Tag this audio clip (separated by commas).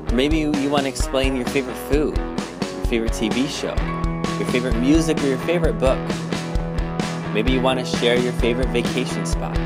Music, Speech